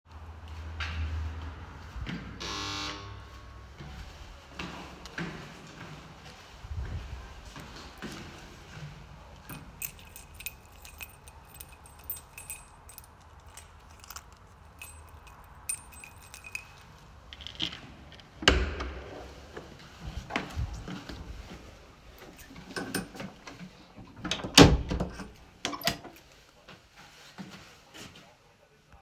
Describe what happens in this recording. In this bonus scene, I walked down the hallway while carrying the phone. I rang a handbell and jingled a set of keys simultaneously and openned and closed door while my footsteps remained audible.